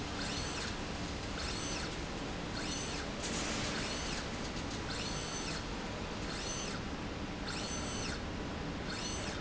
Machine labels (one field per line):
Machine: slide rail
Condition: normal